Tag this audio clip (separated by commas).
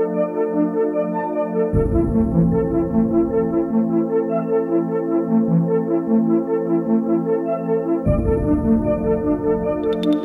Music, Sampler